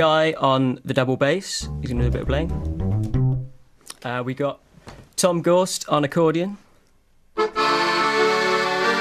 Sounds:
accordion

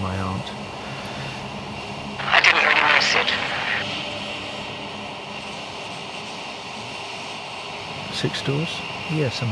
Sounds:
speech, white noise

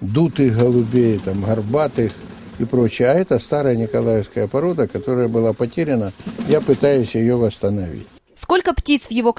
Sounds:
pigeon, bird, speech

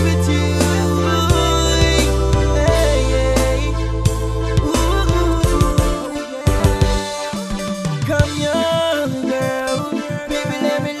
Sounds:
independent music, music

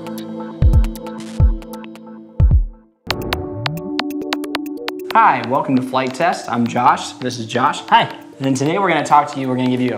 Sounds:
music, speech

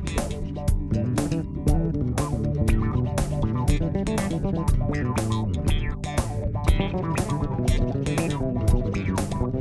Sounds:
bass guitar, plucked string instrument, musical instrument, funk, guitar, music

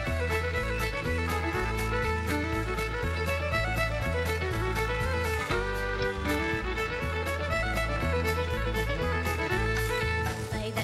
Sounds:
music, musical instrument, fiddle

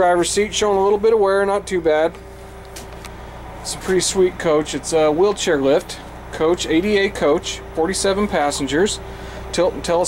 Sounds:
vehicle, speech, bus

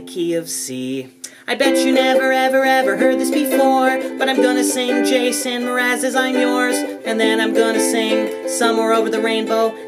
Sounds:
playing ukulele

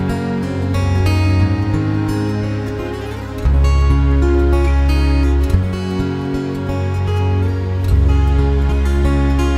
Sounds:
music, tender music

